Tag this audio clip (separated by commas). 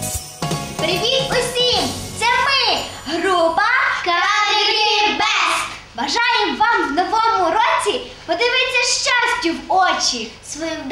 Christmas music, Speech, Christian music, Music